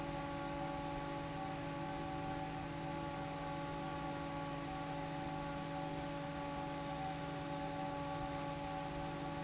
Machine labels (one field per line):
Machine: fan